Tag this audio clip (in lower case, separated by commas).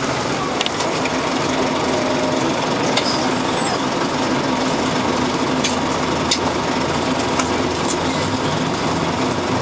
engine knocking, vehicle